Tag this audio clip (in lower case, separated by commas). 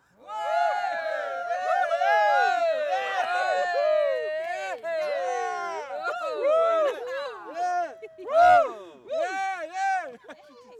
cheering, human group actions